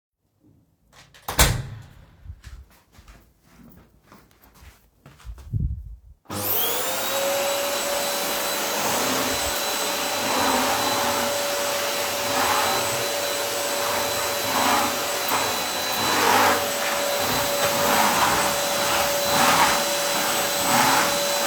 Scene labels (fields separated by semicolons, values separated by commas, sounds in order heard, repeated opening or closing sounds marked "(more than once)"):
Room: living room; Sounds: door, footsteps, vacuum cleaner